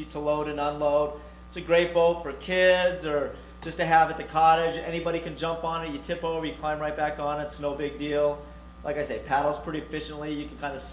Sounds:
speech

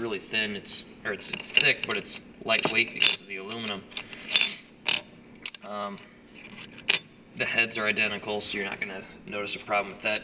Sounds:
inside a small room
speech

